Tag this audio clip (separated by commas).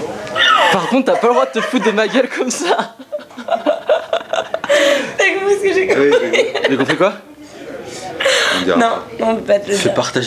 Speech